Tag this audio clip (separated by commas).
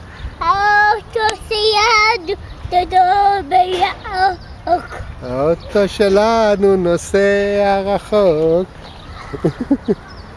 Speech